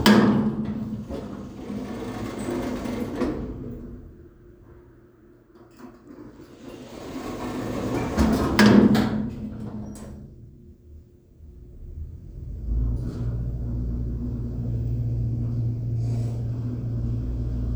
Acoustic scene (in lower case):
elevator